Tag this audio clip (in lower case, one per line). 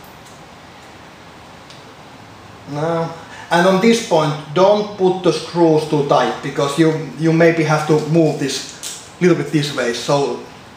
inside a small room
speech